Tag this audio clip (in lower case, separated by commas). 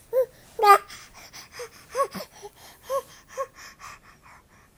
speech, human voice